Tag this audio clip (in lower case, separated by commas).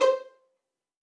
music, bowed string instrument, musical instrument